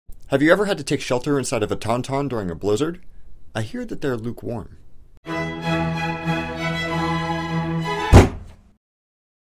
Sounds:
Speech, Music

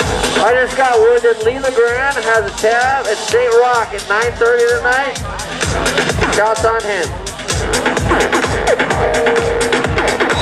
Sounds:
Music, Speech

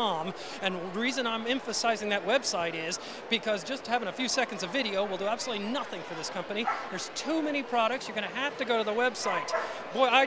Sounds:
Dog, Domestic animals, Yip, Speech, Animal

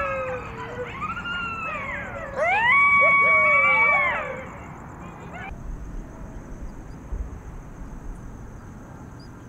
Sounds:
coyote howling

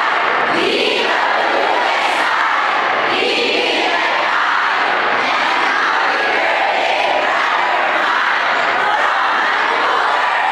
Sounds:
inside a large room or hall, Speech

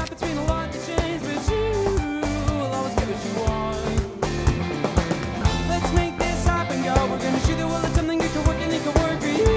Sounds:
Music

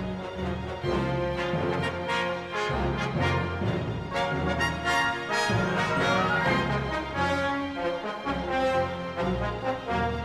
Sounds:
Music

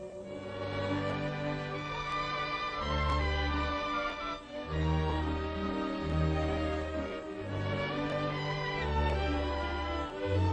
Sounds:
Music

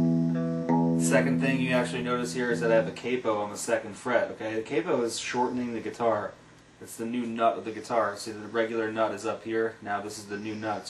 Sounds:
Speech, Plucked string instrument, Guitar, Music, Strum, Musical instrument

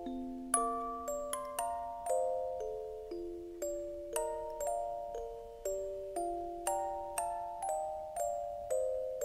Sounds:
Music

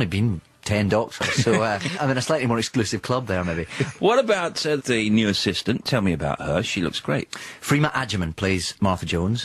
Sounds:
Speech

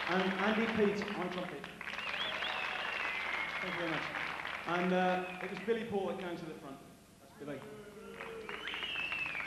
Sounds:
Speech

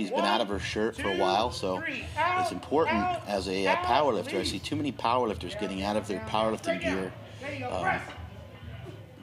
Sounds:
Speech

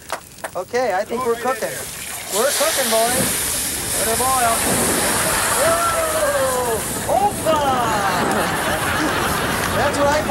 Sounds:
Speech

